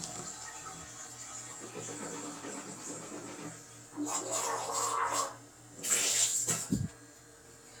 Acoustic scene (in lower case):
restroom